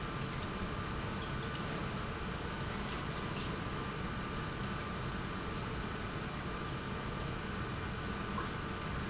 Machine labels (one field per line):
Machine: pump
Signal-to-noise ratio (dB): -6 dB